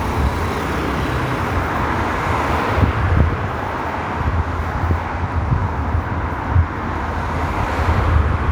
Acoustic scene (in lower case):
street